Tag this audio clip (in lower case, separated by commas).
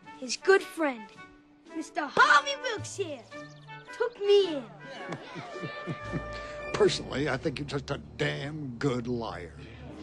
music, speech